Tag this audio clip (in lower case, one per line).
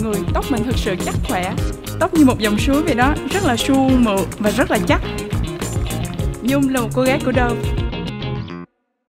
speech
music